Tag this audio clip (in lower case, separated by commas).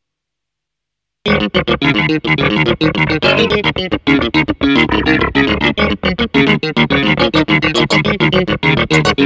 sampler, music, musical instrument